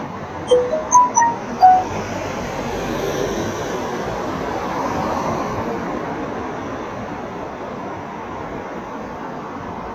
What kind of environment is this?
street